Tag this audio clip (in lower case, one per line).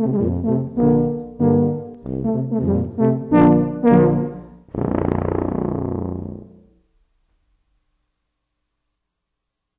music
musical instrument
brass instrument